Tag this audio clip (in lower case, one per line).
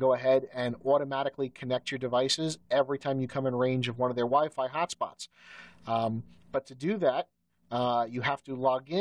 speech